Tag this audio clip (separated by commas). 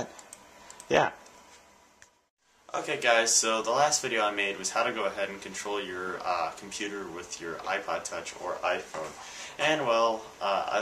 inside a small room, Speech